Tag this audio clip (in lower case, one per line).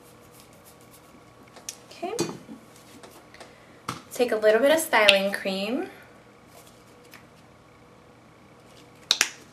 inside a small room
speech